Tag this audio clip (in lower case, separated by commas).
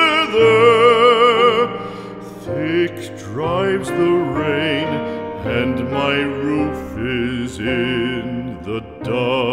music